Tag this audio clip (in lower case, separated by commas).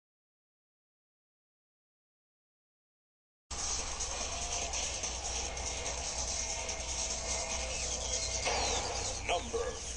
music, speech